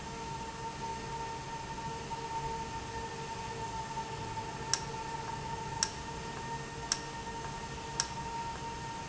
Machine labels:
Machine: valve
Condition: normal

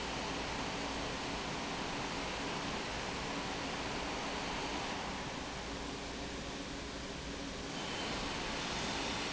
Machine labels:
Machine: pump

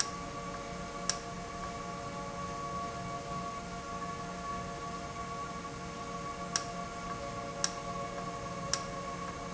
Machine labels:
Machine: valve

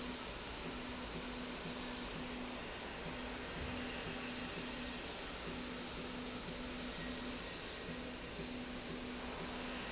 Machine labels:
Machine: slide rail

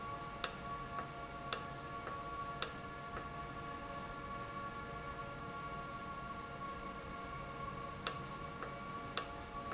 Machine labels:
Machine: valve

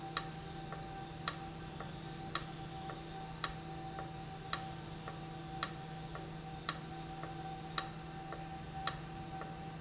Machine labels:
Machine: valve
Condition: abnormal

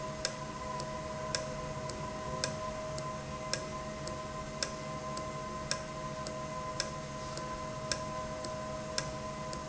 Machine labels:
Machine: valve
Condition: normal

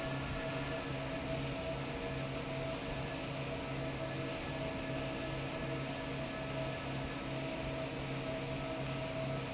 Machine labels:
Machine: fan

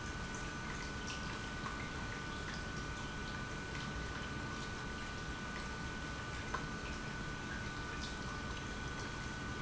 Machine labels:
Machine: pump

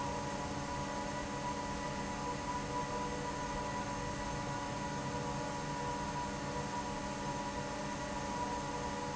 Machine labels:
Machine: fan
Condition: normal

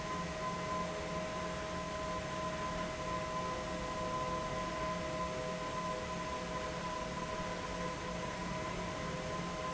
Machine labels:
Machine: fan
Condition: abnormal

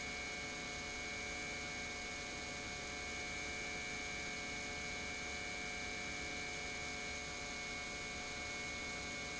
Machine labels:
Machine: pump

